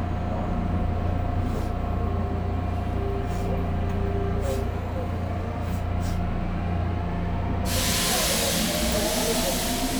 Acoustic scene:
subway train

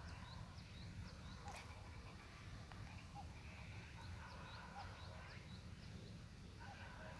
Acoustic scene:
park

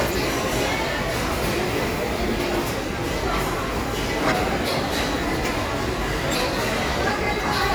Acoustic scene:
restaurant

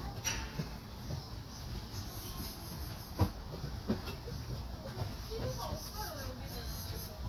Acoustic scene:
park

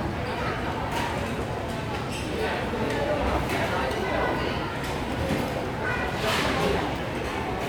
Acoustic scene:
restaurant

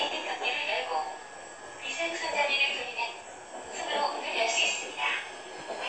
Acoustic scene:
subway train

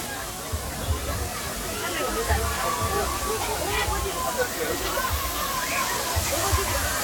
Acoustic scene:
park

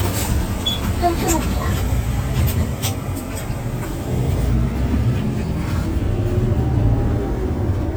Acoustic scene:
bus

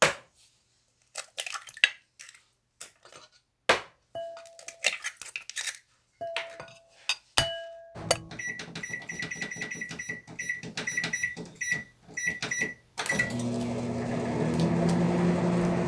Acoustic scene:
kitchen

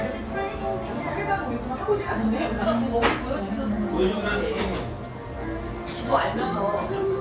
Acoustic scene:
cafe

